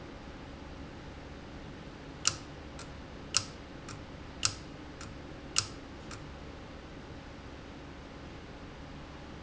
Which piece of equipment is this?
valve